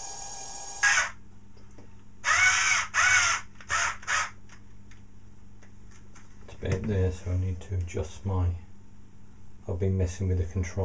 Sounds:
speech

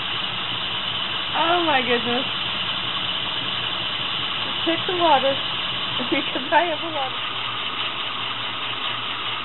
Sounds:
train, speech

